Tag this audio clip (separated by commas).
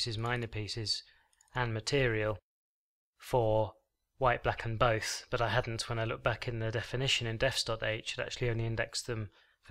Speech